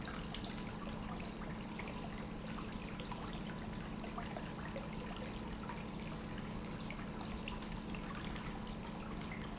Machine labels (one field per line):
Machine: pump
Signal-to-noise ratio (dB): 0 dB